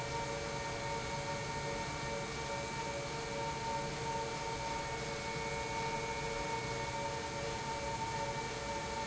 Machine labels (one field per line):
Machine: pump